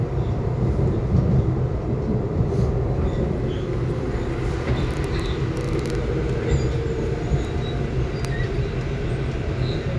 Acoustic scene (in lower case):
subway train